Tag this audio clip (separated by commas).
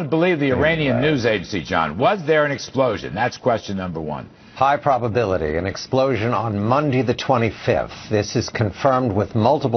Speech